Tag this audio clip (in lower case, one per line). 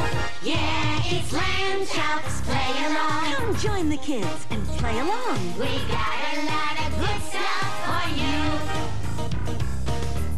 music
speech